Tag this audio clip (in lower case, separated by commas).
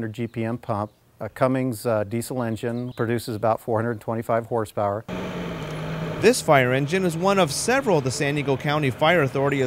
vehicle, heavy engine (low frequency), speech